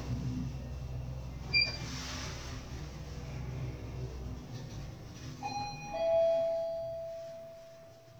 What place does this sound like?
elevator